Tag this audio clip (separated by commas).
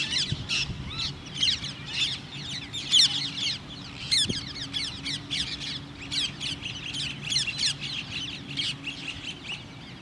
mynah bird singing